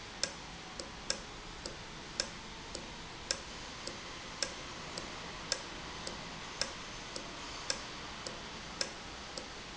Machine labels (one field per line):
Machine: valve